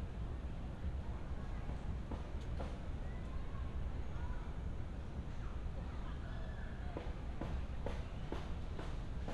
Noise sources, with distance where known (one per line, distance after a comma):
background noise